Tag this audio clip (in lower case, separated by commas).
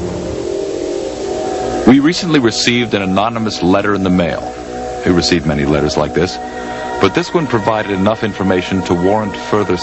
music, speech